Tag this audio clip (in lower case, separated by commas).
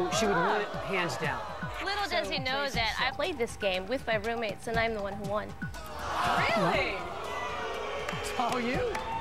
speech, music